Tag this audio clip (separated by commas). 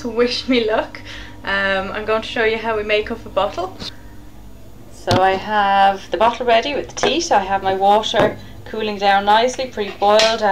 Speech